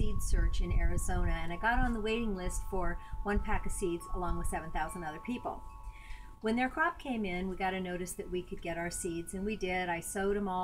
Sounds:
Music, Speech

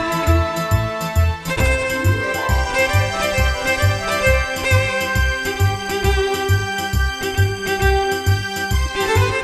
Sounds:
Music, Musical instrument, fiddle

